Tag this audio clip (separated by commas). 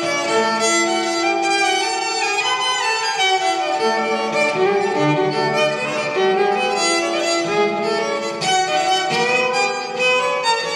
Musical instrument, Music, Violin